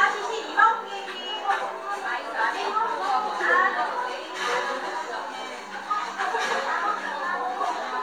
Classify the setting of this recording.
cafe